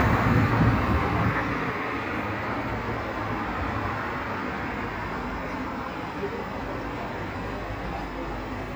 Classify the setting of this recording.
street